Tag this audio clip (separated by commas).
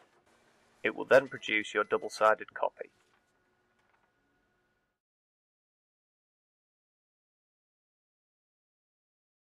Speech